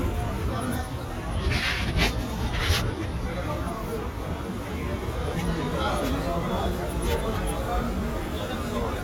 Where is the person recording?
in a restaurant